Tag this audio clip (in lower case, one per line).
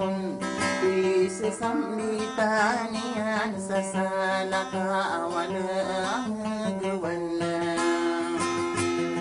singing
music
inside a small room